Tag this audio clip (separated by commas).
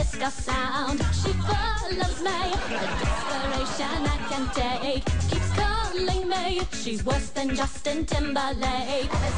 Funk, Speech, Dance music, Music